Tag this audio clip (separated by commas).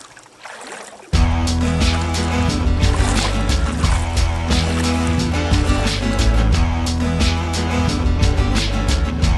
Music